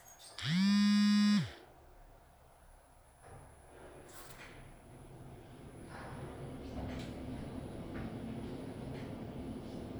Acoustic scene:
elevator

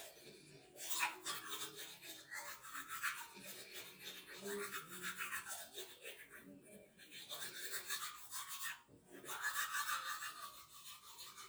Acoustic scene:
restroom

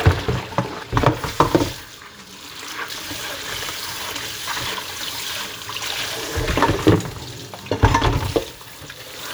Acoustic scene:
kitchen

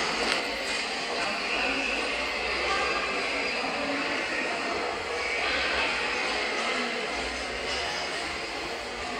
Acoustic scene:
subway station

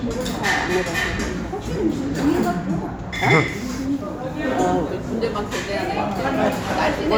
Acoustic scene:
restaurant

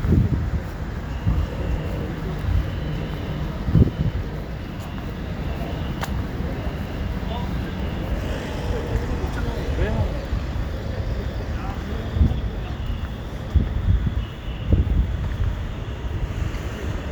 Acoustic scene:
residential area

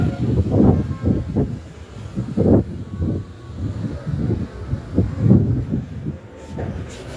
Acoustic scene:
residential area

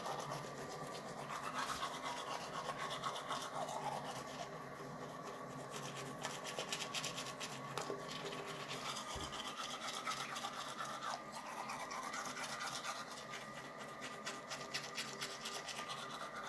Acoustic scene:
restroom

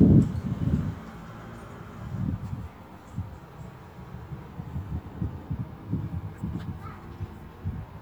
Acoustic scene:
residential area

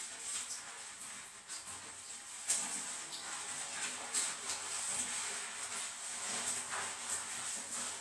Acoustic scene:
restroom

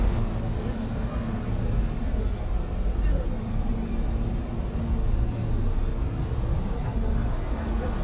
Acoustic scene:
bus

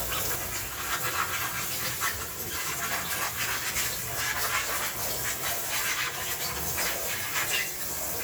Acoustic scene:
kitchen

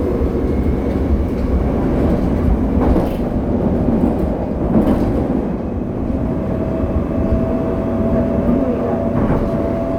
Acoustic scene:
subway train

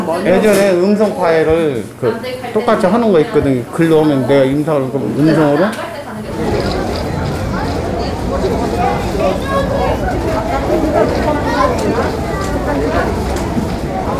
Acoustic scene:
crowded indoor space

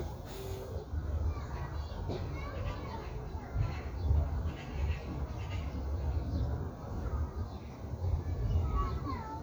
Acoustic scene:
park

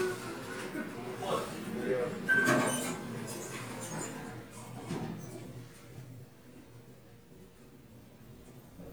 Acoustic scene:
elevator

